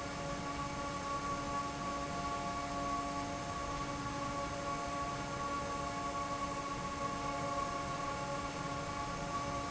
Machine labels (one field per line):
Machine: fan